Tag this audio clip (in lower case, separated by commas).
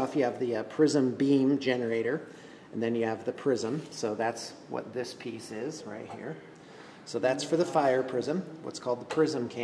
inside a small room, speech